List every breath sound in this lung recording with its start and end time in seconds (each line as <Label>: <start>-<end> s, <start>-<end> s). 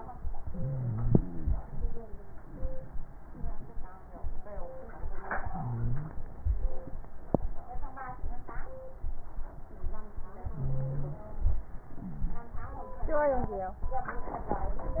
Inhalation: 0.42-1.14 s, 5.34-6.24 s, 10.50-11.20 s
Exhalation: 1.17-1.65 s
Crackles: 0.40-1.10 s, 1.17-1.65 s, 5.34-6.24 s, 10.50-11.20 s